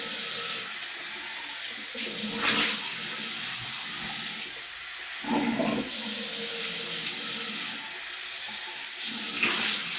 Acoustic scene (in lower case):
restroom